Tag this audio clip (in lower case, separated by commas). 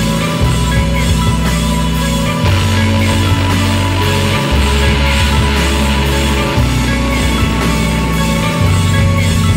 music